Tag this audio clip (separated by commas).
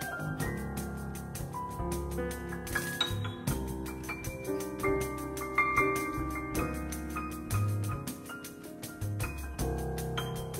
Music, Jazz